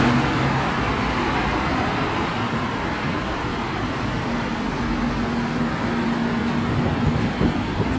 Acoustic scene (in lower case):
street